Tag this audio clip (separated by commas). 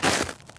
Walk